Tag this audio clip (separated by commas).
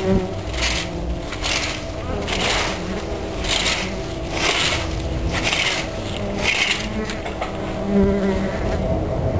Insect, bee or wasp, bee, Buzz